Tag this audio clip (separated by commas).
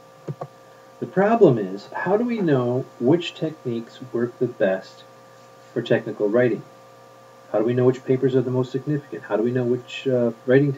Speech